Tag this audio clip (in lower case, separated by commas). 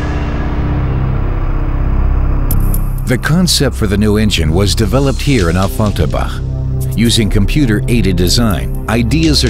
speech, music